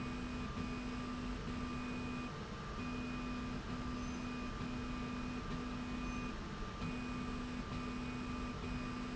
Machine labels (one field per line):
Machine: slide rail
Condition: normal